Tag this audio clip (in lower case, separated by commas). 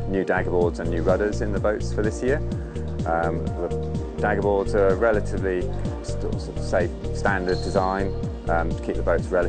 speech, music